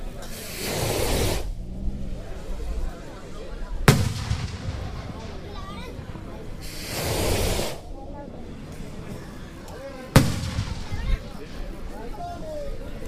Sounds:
Explosion, Fireworks

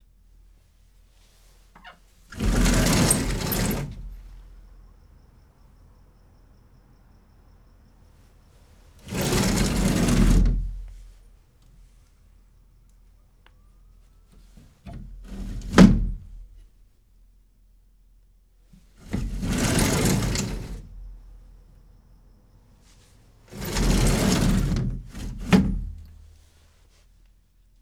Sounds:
Door, Sliding door, Domestic sounds

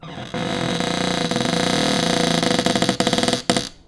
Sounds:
Cupboard open or close, home sounds

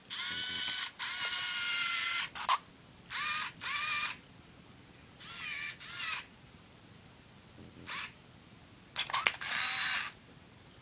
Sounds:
Camera, Mechanisms

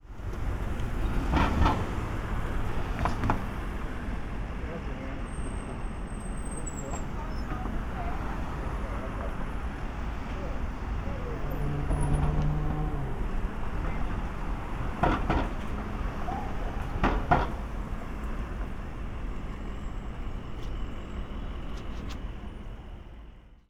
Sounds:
Vehicle, Car, Engine, Human group actions, Traffic noise, Chatter, Motor vehicle (road), Car passing by

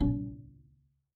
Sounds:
Bowed string instrument, Music, Musical instrument

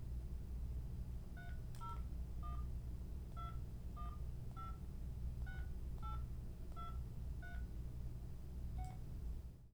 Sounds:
Telephone, Alarm

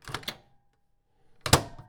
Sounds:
Domestic sounds, Microwave oven

